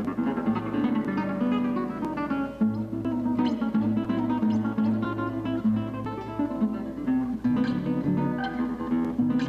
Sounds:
Plucked string instrument, Music, Musical instrument, Guitar

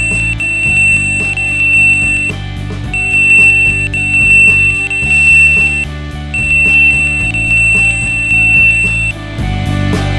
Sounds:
Music

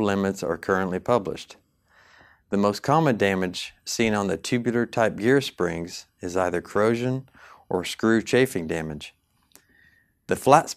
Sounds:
Speech

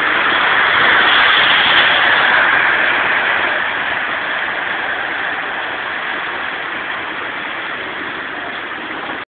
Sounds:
Rain on surface

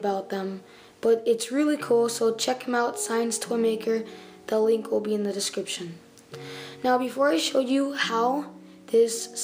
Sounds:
Speech, Music

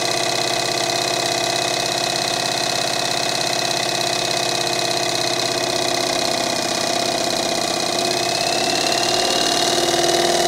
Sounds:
Medium engine (mid frequency), vroom, Idling, Engine

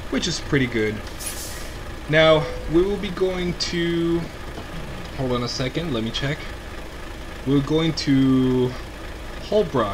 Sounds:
Truck, Speech

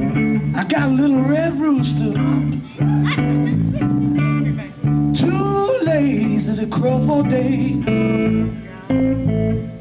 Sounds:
Music, Speech

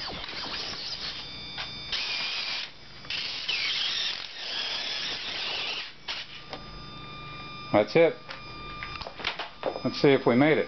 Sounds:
Speech, inside a small room

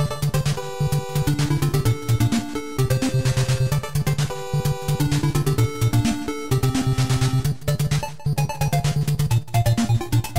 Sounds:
Music

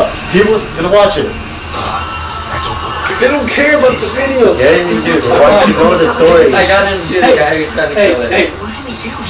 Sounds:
Speech

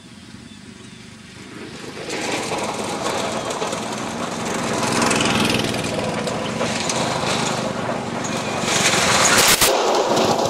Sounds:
Vehicle

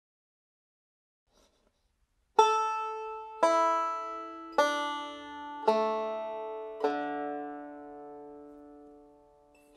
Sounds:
Banjo, Musical instrument, Music, Plucked string instrument, playing banjo

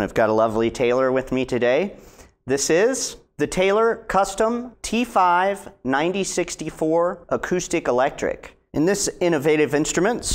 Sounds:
Speech

